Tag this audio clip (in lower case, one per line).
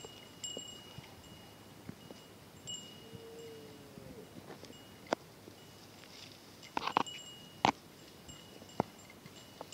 cattle